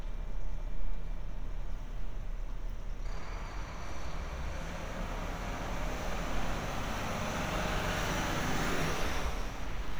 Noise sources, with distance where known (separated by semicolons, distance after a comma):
large-sounding engine, near